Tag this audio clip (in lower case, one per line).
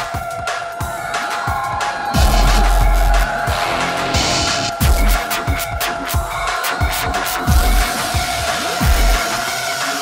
electronic music
dubstep
music